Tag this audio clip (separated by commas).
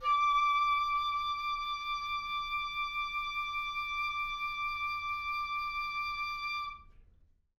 Music, Wind instrument, Musical instrument